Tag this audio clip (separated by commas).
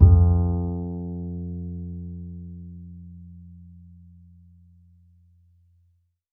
Music, Musical instrument, Bowed string instrument